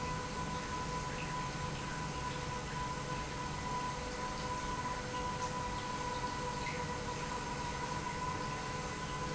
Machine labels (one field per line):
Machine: pump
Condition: normal